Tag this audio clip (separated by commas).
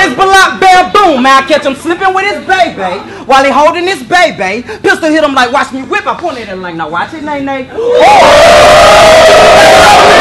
inside a large room or hall, Speech